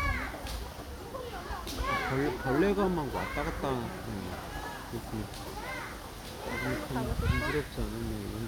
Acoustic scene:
park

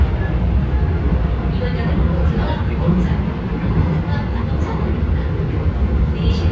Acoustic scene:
subway train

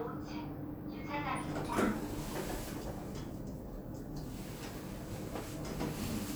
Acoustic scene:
elevator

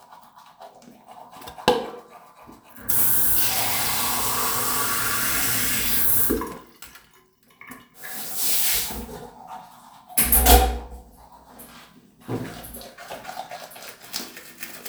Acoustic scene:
restroom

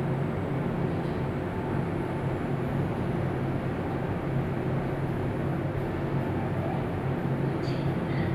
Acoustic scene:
elevator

